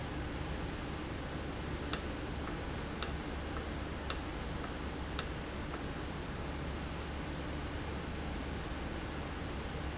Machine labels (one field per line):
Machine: valve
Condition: normal